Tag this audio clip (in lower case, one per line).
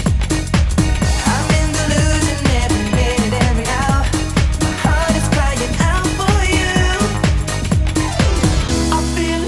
music